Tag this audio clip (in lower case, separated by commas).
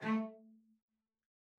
musical instrument, music, bowed string instrument